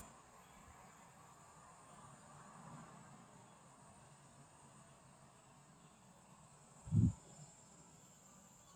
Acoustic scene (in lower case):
park